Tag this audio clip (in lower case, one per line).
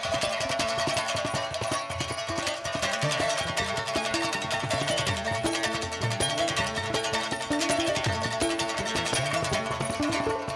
rhythm and blues
music
blues